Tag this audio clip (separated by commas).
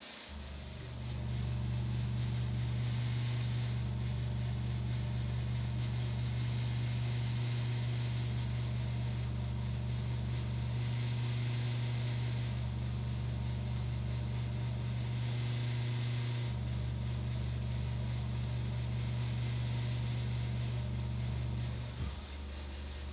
Mechanical fan, Mechanisms